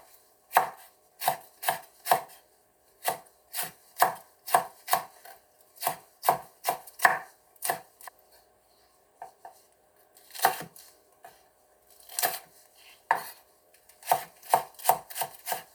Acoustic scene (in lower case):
kitchen